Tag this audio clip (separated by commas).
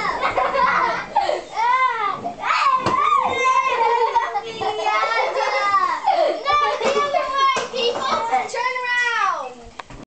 kid speaking, Speech